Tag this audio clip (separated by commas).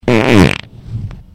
Fart